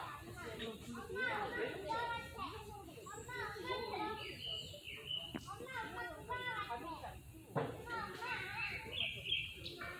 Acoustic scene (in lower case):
park